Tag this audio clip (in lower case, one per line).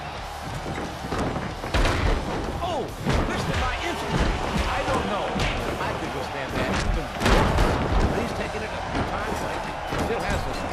music
speech